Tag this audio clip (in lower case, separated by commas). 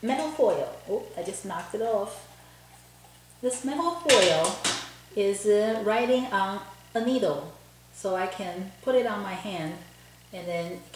speech